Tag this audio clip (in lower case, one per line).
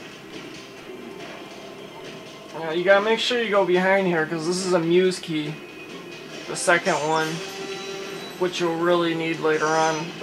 speech
music